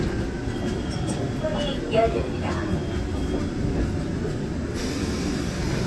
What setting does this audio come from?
subway train